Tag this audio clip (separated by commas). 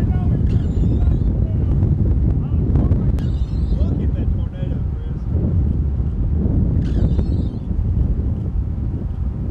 tornado roaring